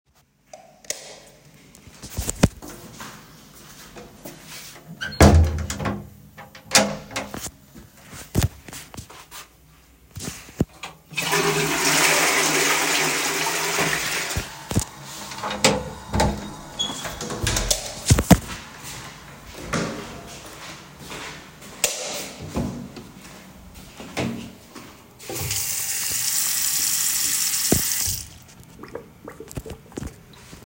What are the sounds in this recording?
light switch, footsteps, door, toilet flushing, running water